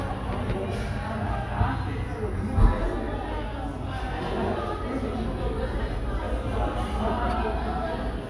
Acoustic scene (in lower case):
cafe